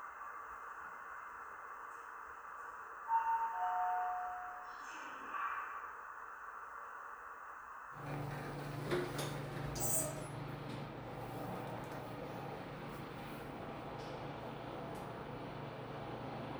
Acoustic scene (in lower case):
elevator